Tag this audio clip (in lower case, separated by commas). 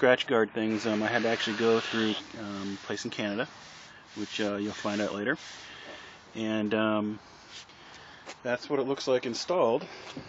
speech